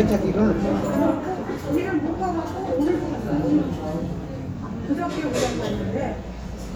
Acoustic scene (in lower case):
restaurant